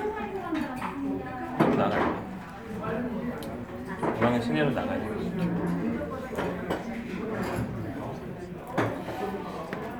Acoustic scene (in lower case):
crowded indoor space